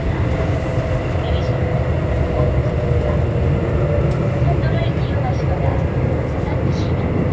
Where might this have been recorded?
on a subway train